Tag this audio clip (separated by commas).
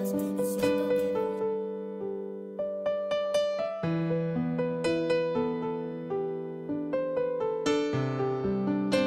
Musical instrument, Music